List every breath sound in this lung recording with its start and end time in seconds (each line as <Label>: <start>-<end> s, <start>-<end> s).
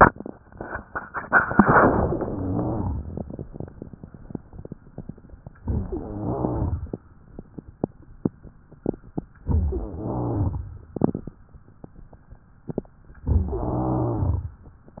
Inhalation: 2.15-3.30 s, 5.60-6.95 s, 9.45-10.68 s, 13.32-14.55 s
Rhonchi: 2.15-3.30 s, 5.60-6.95 s, 9.45-10.68 s, 13.32-14.55 s